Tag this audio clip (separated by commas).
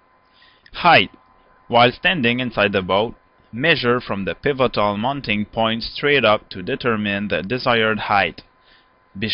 Speech